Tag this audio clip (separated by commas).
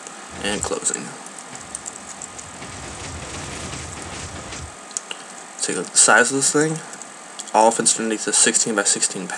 Speech